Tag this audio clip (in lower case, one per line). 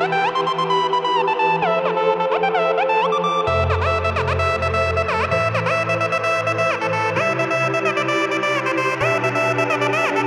electronica